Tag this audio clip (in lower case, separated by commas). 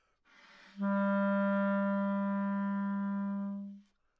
musical instrument, woodwind instrument, music